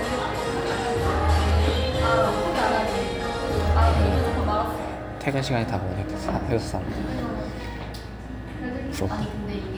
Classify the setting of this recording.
cafe